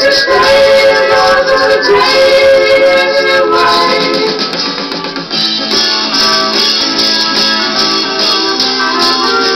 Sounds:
synthetic singing
music

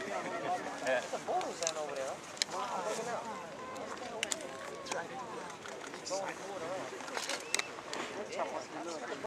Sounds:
speech

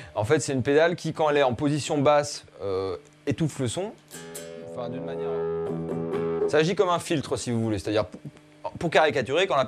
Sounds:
speech
guitar
music
musical instrument

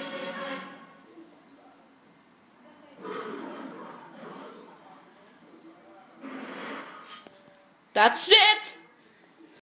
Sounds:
speech
television

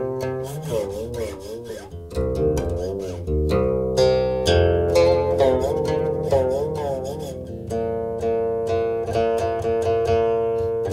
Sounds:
music

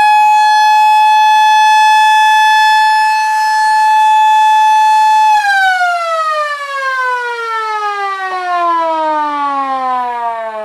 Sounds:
inside a small room
alarm

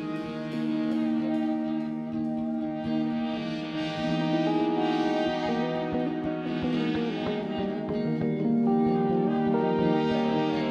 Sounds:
music

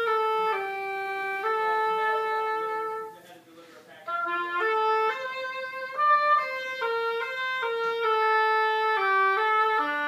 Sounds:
playing oboe

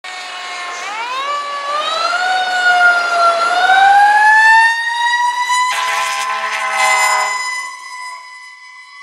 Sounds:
car
truck
truck horn
outside, urban or man-made
engine
vehicle
emergency vehicle
siren

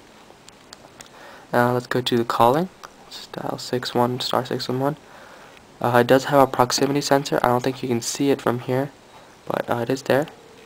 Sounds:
speech

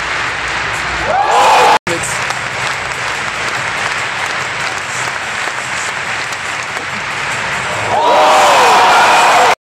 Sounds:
music
speech

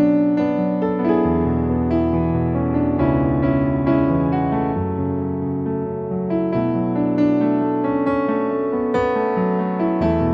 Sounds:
music

